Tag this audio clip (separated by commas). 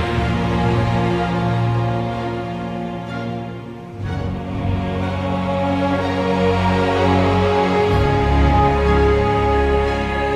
Soundtrack music, Music